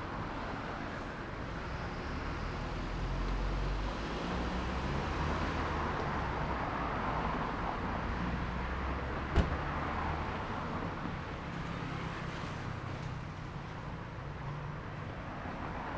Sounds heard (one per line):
car
bus engine idling
bus compressor
bus engine accelerating
bus
motorcycle
car wheels rolling
motorcycle engine accelerating